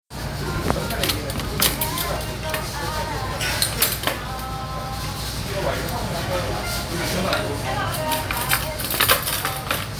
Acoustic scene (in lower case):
restaurant